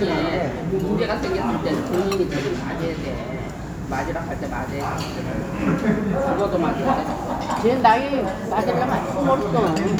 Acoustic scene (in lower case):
restaurant